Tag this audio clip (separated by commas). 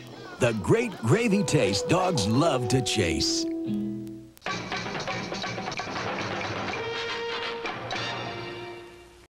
Music, Speech